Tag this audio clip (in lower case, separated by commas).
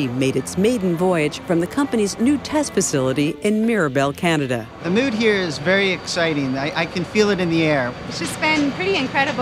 music, aircraft, speech